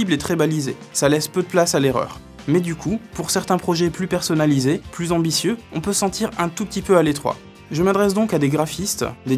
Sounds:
Music, Speech

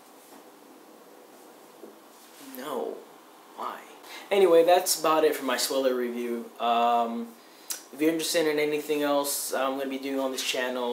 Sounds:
inside a small room, Speech

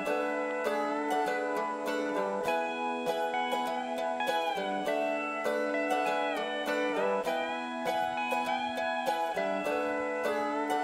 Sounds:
Music, Ukulele

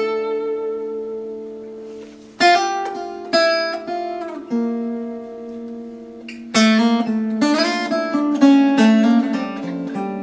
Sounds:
Pizzicato

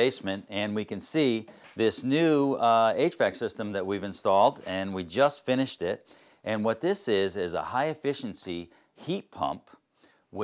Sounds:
Speech

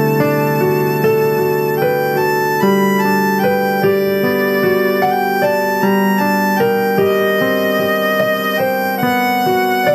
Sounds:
Musical instrument, Music, fiddle

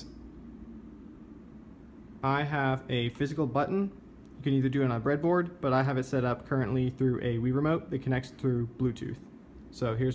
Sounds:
Speech

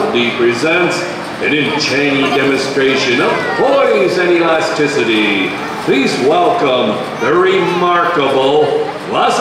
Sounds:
Speech

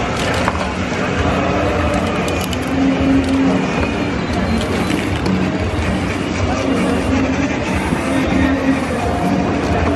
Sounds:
Music, Spray

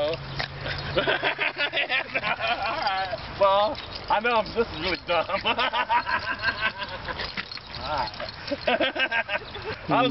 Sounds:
Dog, outside, rural or natural, Speech, pets, Animal

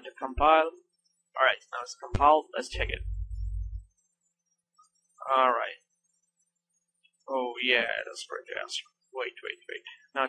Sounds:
Speech, Silence

